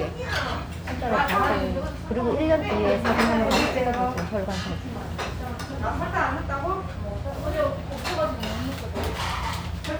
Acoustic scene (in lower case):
restaurant